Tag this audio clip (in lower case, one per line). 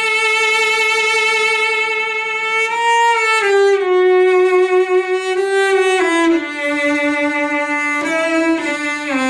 playing cello